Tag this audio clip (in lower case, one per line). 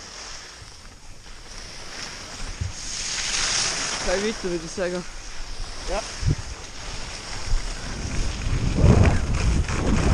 skiing